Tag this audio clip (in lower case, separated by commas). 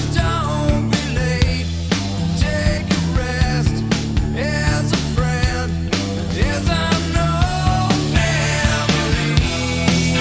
grunge, music